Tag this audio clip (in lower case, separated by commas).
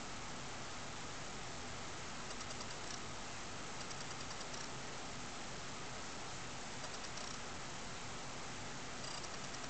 cricket, insect